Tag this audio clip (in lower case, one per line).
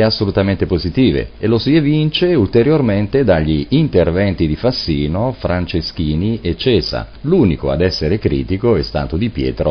speech